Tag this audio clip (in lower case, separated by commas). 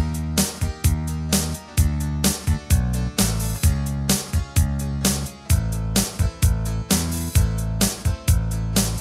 music